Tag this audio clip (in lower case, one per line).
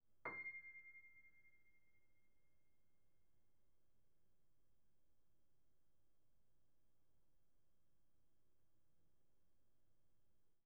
keyboard (musical)
musical instrument
piano
music